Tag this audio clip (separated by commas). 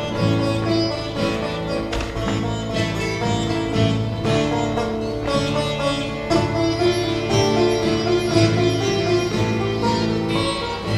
Musical instrument, Sitar, Music, Guitar